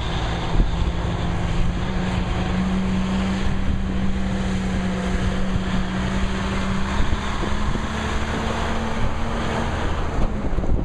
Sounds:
truck, vehicle

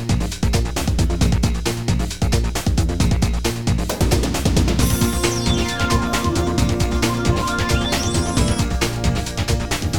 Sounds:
music

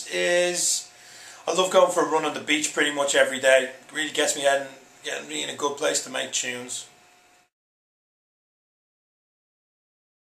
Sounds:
speech

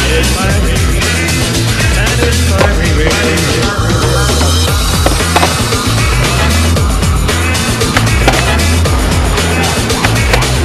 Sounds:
music, skateboard

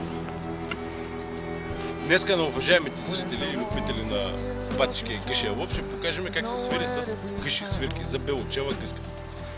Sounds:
speech, music

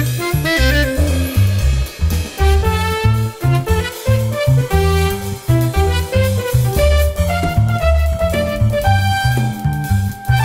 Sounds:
music

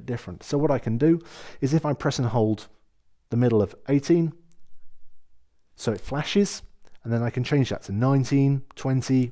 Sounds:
speech

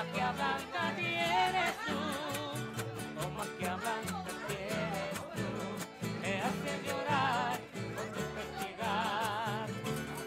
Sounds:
music, speech

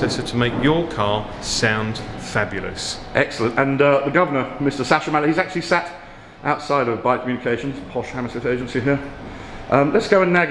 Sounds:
speech

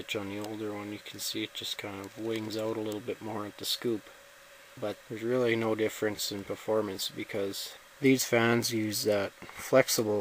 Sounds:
speech

